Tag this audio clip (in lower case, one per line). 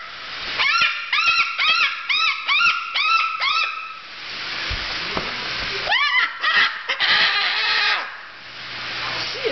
bird squawking